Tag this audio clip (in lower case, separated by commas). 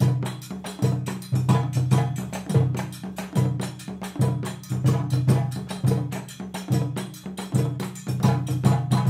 inside a large room or hall, music, musical instrument, drum